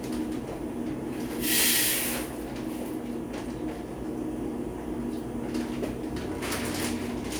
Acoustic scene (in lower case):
cafe